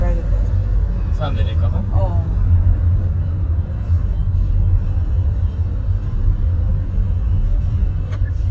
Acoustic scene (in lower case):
car